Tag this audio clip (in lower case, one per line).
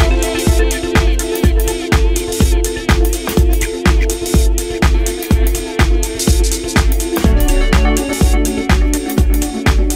disco
music